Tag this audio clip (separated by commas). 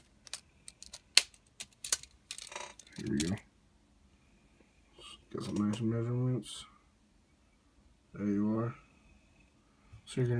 Speech